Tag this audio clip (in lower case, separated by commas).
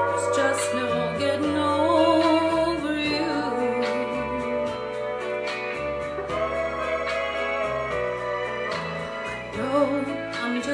music, female singing